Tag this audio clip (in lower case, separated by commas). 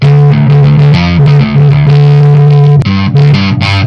guitar, musical instrument, plucked string instrument, music